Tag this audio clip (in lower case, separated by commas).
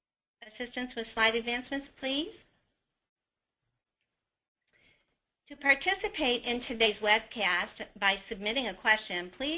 speech